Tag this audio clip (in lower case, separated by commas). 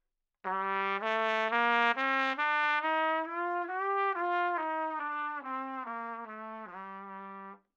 trumpet, brass instrument, music, musical instrument